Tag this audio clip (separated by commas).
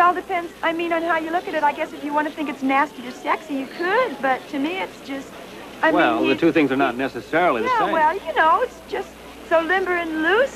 Speech